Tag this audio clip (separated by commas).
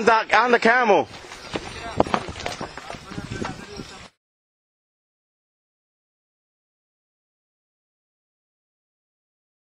Speech